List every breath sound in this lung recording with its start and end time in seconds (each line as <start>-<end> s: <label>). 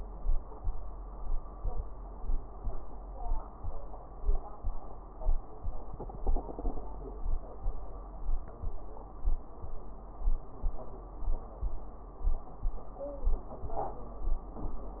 No breath sounds were labelled in this clip.